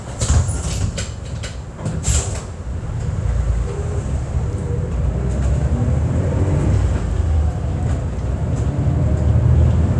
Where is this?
on a bus